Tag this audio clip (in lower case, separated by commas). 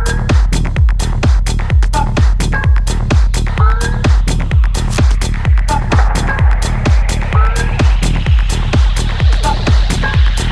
music, techno, electronic music